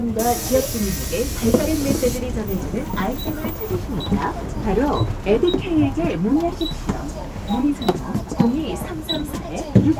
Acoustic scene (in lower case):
bus